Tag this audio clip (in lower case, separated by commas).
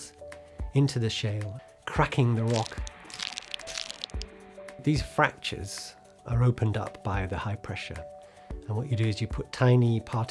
speech, music